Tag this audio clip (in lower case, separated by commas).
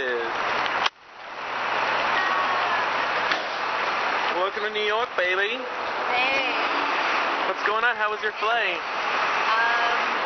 speech